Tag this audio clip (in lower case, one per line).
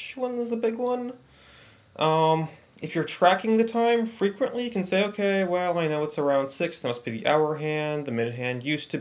speech